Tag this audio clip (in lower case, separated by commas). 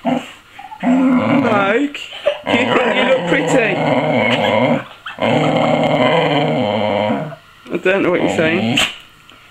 speech, dog, domestic animals, animal